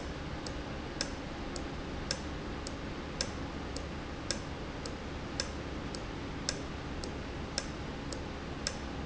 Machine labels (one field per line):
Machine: valve